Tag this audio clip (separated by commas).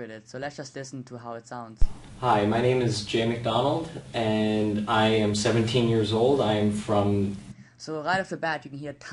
Speech